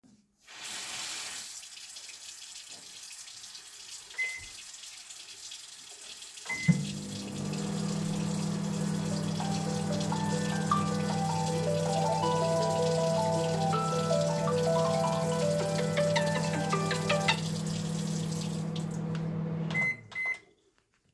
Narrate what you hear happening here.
I am getting water from the sink and make food in the mircowave and somebody called me.